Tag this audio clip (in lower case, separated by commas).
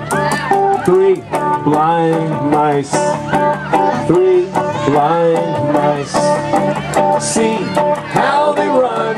speech, music